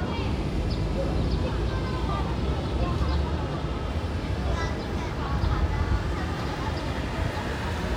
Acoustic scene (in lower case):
residential area